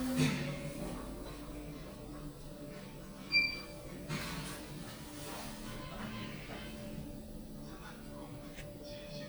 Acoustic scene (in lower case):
elevator